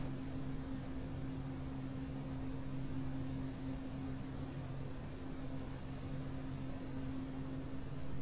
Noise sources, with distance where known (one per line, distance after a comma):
background noise